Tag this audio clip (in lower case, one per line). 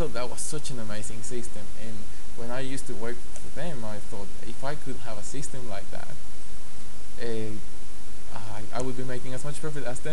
speech